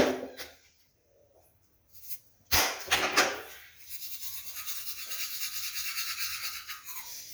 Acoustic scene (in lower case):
restroom